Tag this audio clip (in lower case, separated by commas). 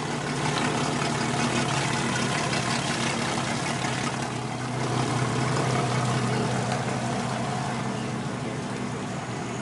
speedboat acceleration, motorboat, vehicle